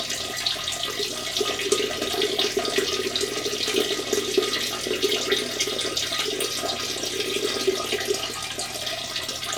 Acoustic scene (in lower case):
restroom